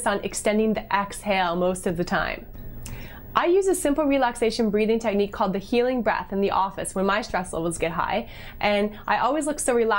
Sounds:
Speech, Female speech

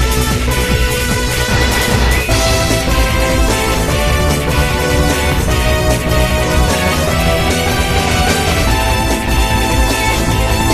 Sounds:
Music

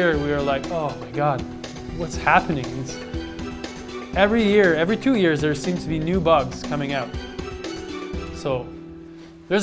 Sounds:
Speech, Music

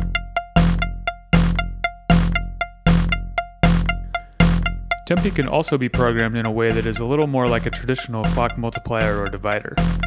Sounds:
Music, Speech

